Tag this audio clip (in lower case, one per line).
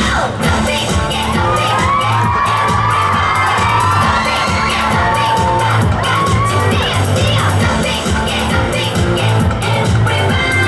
music